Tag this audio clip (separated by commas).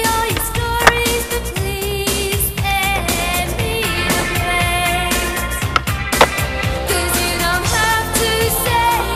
Skateboard, Music of Asia, Music